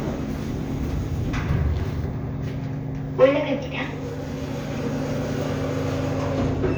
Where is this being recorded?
in an elevator